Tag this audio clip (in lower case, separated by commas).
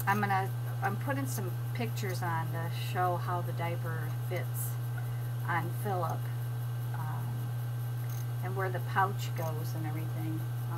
speech